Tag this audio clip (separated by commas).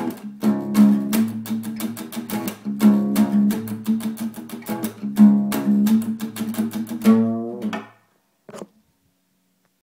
Musical instrument, Music, Plucked string instrument, Guitar, Strum, Acoustic guitar